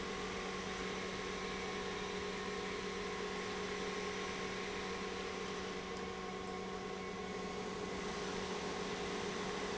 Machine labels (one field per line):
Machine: pump